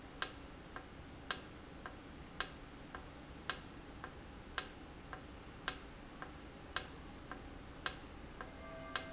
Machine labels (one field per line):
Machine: valve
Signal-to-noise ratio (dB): 6 dB